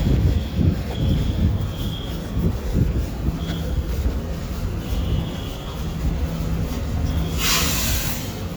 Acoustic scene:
residential area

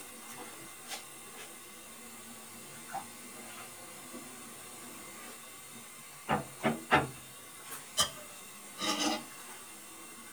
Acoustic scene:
kitchen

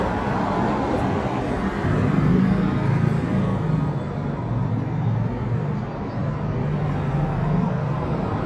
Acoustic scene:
street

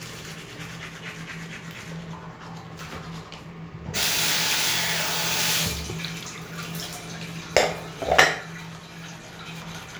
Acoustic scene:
restroom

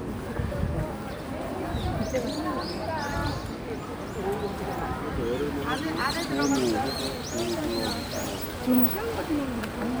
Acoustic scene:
residential area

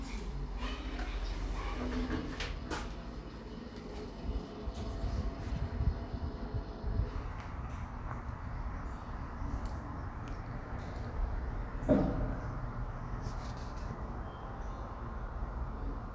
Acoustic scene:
elevator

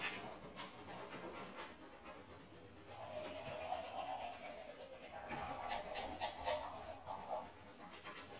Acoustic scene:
restroom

